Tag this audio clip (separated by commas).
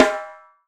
Musical instrument, Music, Drum, Percussion, Snare drum